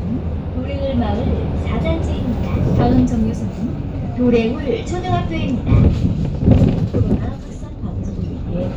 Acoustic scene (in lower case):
bus